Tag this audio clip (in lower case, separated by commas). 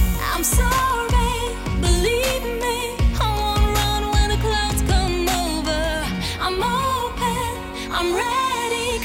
music, music of asia